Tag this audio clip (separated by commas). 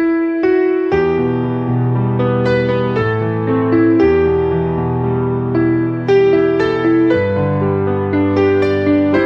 Music